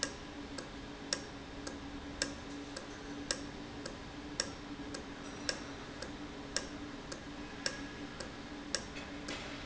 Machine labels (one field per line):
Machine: valve